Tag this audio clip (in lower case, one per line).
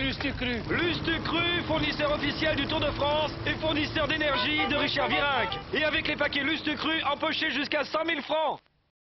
speech